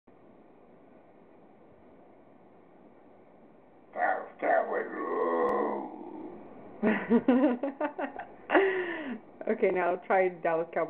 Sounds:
speech

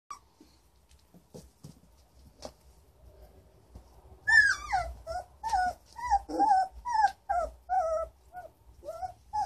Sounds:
animal, domestic animals, dog

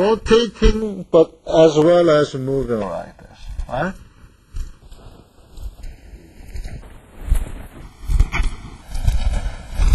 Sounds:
speech, inside a large room or hall

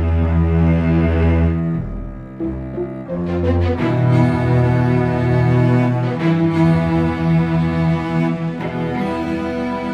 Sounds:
drum and bass, music, theme music

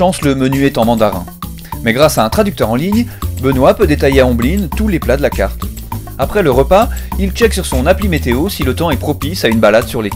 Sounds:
speech, music

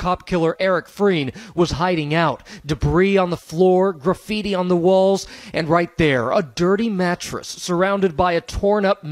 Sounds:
speech

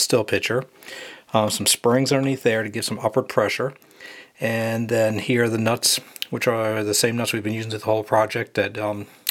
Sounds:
speech

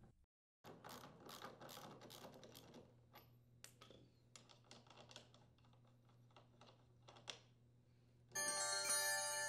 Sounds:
speech, music

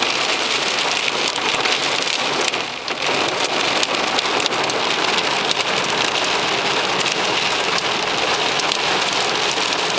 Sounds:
rain on surface

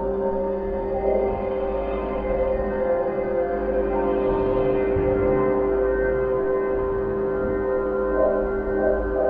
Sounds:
music, ambient music

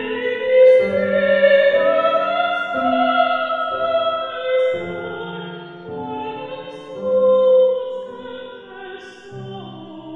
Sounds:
inside a large room or hall, music

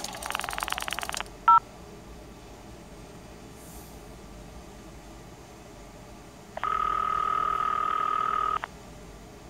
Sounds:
scrape

